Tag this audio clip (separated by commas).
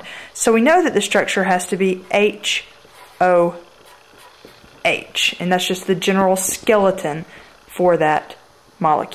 Speech